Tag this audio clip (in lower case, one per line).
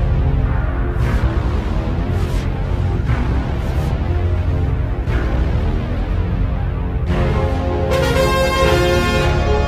soundtrack music
music